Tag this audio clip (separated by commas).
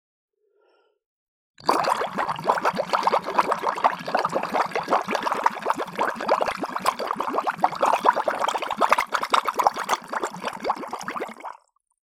Liquid